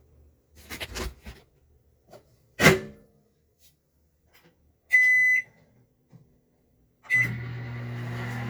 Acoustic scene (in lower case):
kitchen